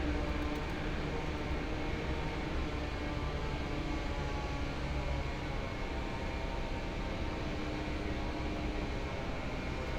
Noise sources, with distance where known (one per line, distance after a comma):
unidentified powered saw